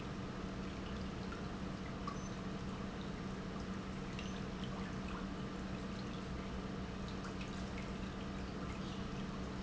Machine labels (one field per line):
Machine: pump